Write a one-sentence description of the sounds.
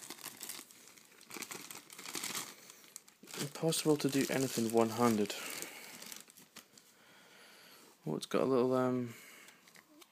Paper crumples, and an adult male speaks